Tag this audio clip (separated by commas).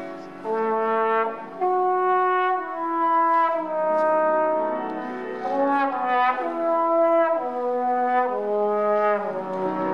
playing trombone